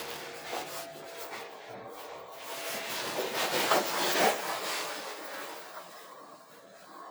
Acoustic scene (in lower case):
elevator